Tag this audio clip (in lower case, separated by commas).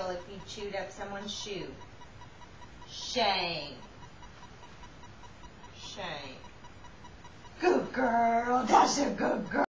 speech